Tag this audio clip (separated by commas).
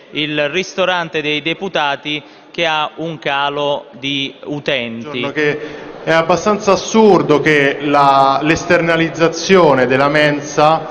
Speech